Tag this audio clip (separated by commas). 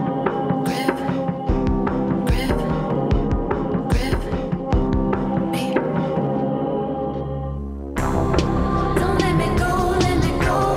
Singing, Music